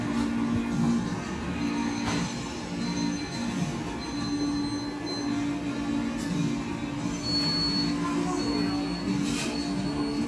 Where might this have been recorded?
in a cafe